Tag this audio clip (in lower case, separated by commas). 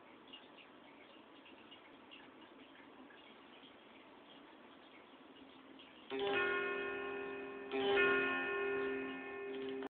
plucked string instrument, music, guitar, acoustic guitar, musical instrument